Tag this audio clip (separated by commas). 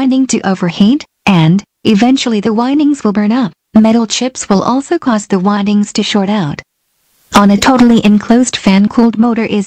Speech